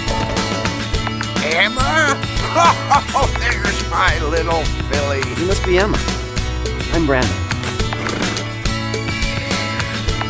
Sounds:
speech, whinny, horse neighing, music, clip-clop, horse

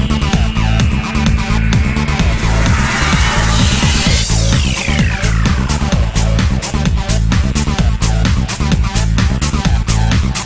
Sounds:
music

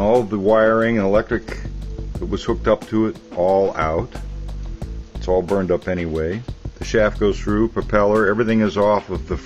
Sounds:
music, speech

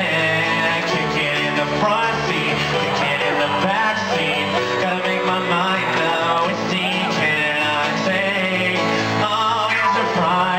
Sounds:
music, male singing

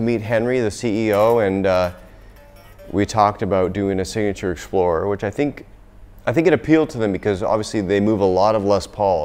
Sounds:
music, guitar, speech, bass guitar, electric guitar, acoustic guitar, musical instrument

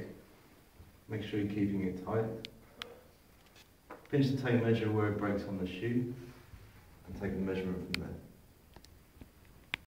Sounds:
speech

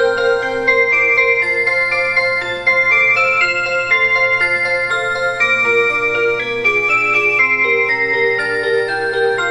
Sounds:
music

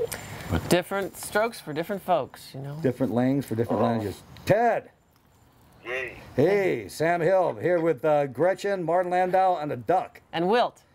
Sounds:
speech, duck

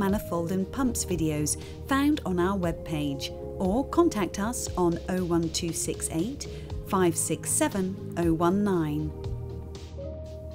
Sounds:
speech, music

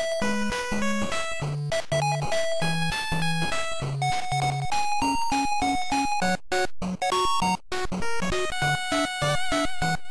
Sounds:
music

